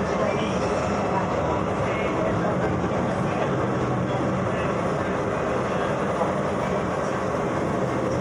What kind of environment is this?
subway train